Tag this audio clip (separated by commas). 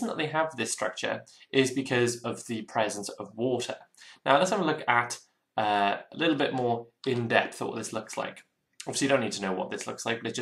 Speech